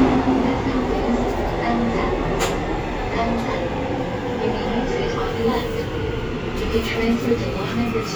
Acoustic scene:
subway train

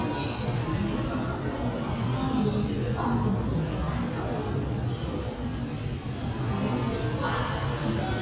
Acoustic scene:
crowded indoor space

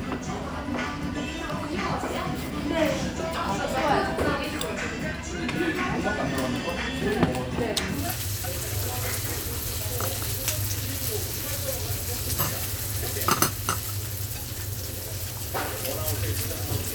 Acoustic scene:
restaurant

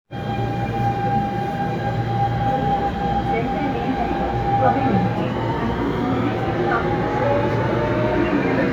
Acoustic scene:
subway train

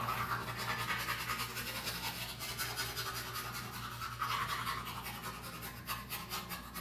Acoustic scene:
restroom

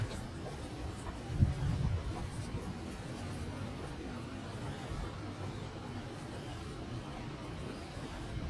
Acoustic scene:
residential area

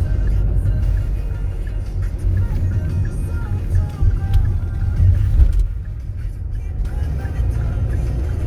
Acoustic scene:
car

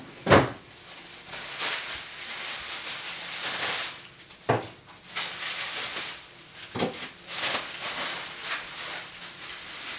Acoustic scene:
kitchen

